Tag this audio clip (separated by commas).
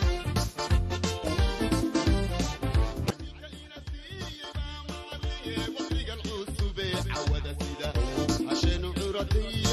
Music